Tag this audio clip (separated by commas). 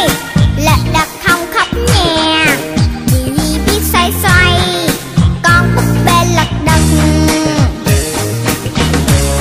Music